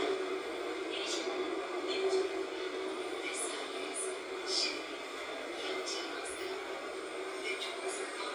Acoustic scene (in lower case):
subway train